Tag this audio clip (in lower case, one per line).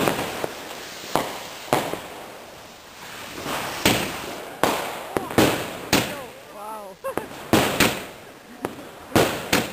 speech
firecracker
fireworks